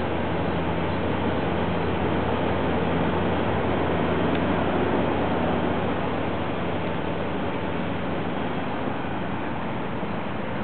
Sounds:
vehicle

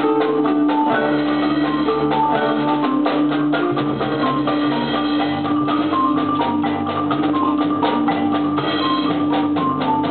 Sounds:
xylophone, marimba, glockenspiel, mallet percussion

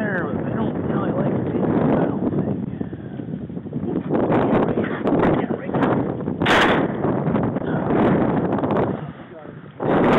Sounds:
speech

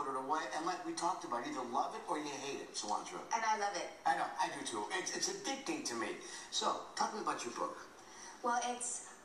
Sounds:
female speech, speech

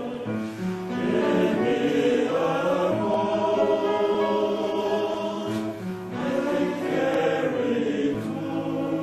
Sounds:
music, choir

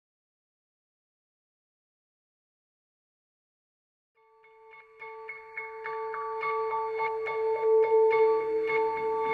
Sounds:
music

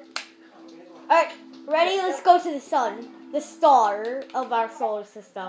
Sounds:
music, speech

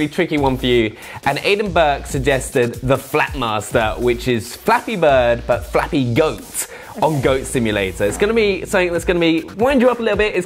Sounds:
speech

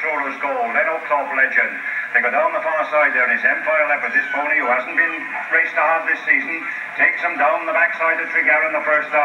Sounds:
speech

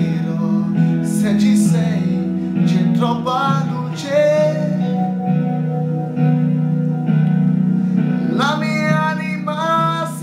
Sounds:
music, male singing

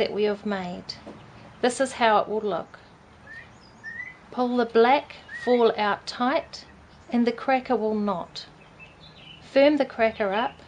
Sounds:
speech

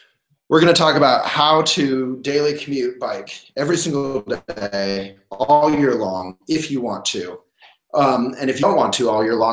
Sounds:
speech

